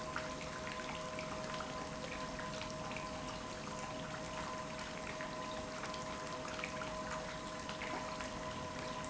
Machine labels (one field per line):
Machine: pump